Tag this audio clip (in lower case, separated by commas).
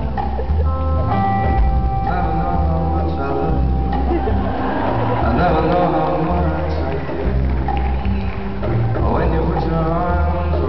music, male singing